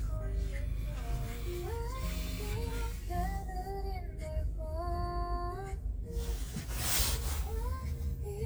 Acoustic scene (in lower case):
car